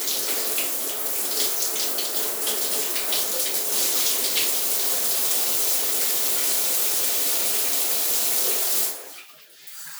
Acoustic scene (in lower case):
restroom